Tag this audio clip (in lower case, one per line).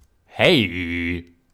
man speaking
speech
human voice